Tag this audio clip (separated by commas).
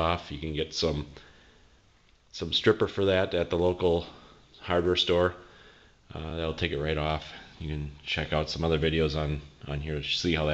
Speech